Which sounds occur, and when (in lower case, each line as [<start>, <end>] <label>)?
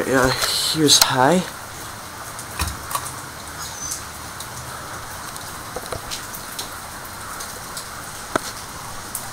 [0.00, 1.52] male speech
[0.00, 9.32] mechanisms
[2.53, 2.75] generic impact sounds
[2.84, 3.12] generic impact sounds
[3.53, 4.06] squeak
[4.33, 4.64] generic impact sounds
[5.24, 5.56] generic impact sounds
[5.73, 6.01] generic impact sounds
[6.11, 6.27] generic impact sounds
[6.41, 6.72] generic impact sounds
[7.33, 7.55] generic impact sounds
[7.72, 7.90] generic impact sounds
[8.33, 8.74] generic impact sounds